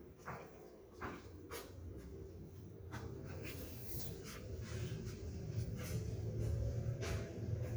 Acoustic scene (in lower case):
elevator